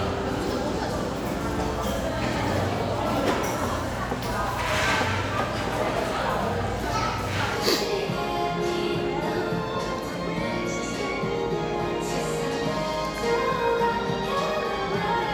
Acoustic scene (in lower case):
cafe